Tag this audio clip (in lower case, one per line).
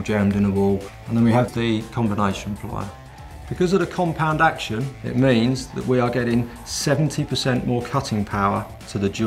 music
speech